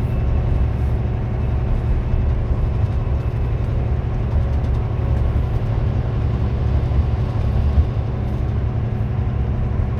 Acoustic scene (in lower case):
car